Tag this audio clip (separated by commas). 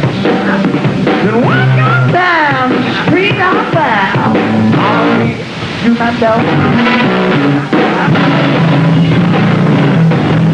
Music